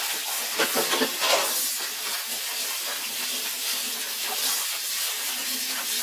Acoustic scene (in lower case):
kitchen